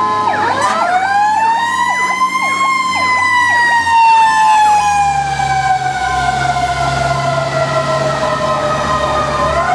The wail of a siren and horn as an emergency vehicle passes by